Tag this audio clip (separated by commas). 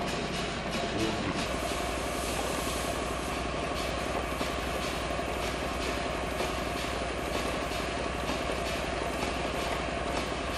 Engine, Medium engine (mid frequency)